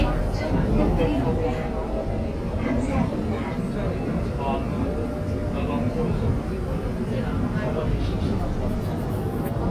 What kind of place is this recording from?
subway train